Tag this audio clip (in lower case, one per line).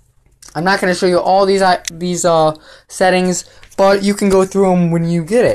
speech